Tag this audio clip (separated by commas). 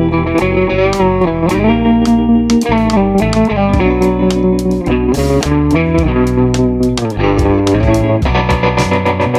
Music